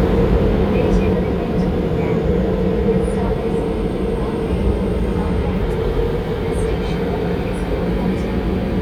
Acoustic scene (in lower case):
subway train